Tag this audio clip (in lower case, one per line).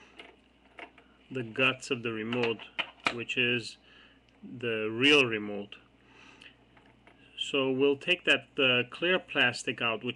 speech